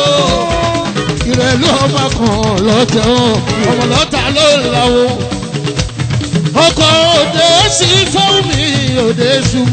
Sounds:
music of africa
middle eastern music
music

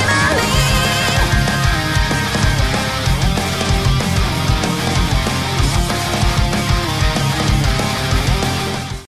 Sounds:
music

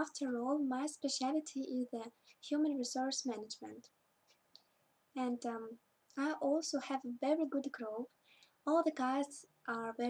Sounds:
speech

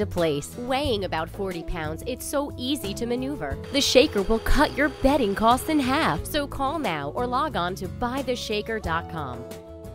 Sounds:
music
speech

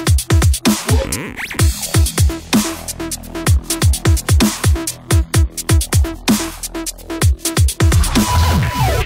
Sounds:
music

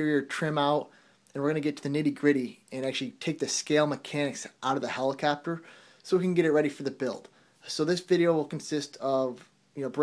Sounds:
speech

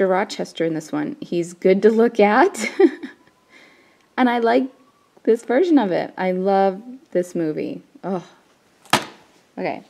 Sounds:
speech

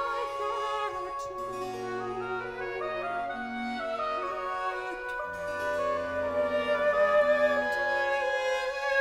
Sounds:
brass instrument

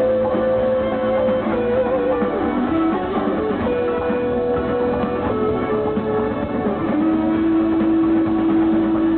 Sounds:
rustle
music

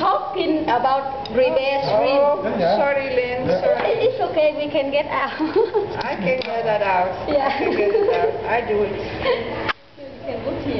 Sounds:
speech

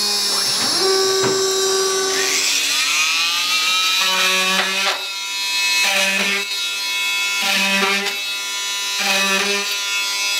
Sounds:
drill
inside a small room

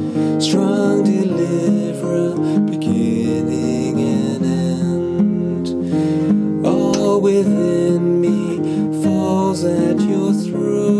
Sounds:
musical instrument
plucked string instrument
acoustic guitar
guitar
music
strum

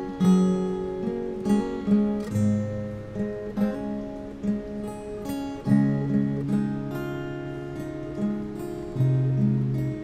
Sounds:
exciting music
music

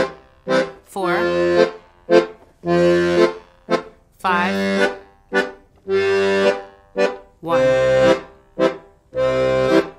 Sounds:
playing accordion

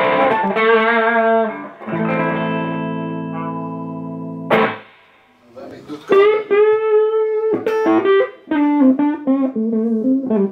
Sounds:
electric guitar
music
speech
plucked string instrument
bowed string instrument
musical instrument
guitar

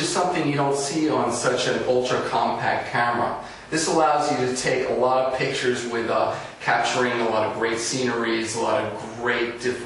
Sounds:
speech

